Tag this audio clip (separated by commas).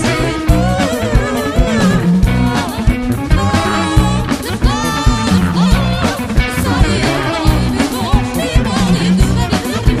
Bass drum, Ska, Guitar, Drum kit, Singing, Music, Musical instrument